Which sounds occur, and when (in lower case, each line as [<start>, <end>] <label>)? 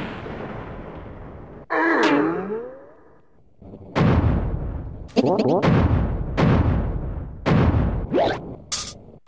[0.00, 9.25] video game sound